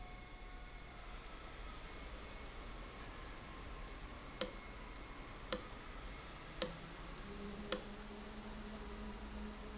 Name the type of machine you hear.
valve